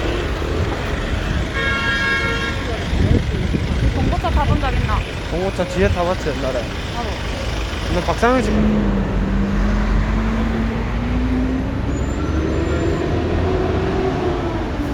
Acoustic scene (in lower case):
street